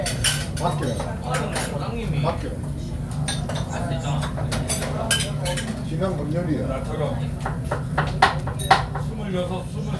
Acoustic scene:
restaurant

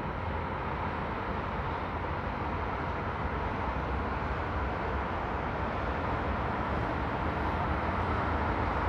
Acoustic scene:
street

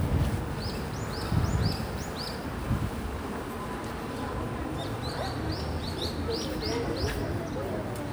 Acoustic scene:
residential area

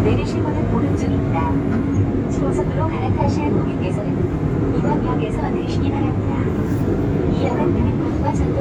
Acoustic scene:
subway train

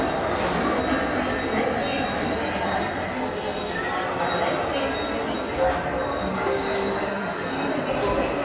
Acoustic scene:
subway station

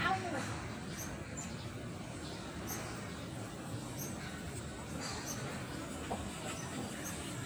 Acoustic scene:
park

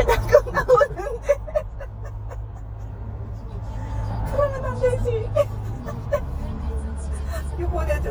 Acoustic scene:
car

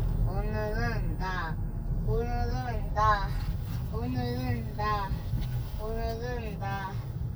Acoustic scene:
car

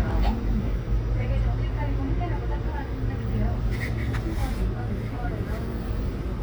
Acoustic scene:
bus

